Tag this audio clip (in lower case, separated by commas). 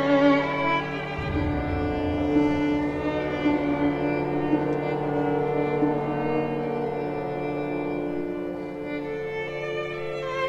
violin, musical instrument, music